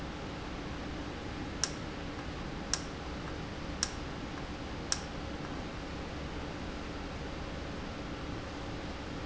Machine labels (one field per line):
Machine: valve